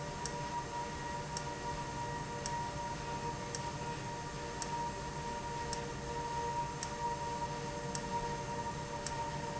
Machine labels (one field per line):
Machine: valve